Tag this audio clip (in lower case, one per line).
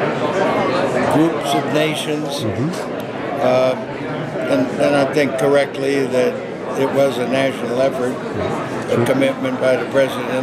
speech